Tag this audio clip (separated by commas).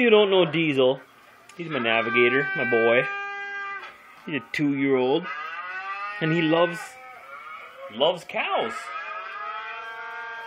Animal, Speech, Domestic animals, inside a small room